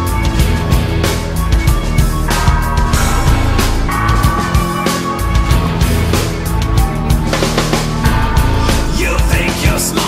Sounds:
music

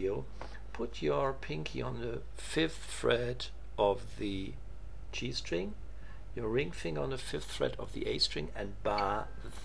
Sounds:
speech

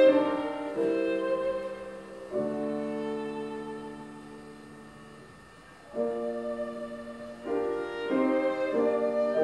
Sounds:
musical instrument
music
fiddle

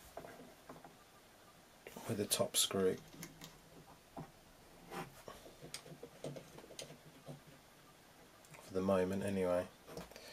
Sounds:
speech

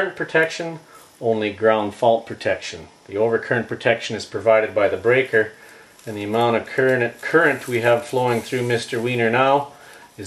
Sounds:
inside a small room
speech

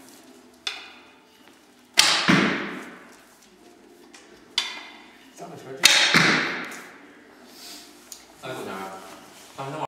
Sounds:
speech

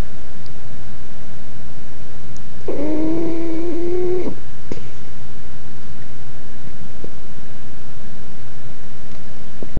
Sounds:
pets
dog
animal

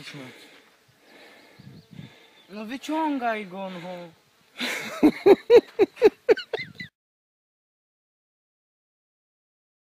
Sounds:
speech

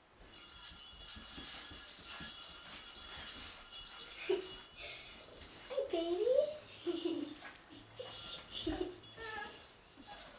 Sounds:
speech
jingle bell

